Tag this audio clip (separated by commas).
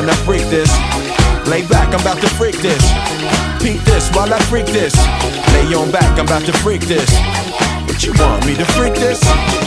Music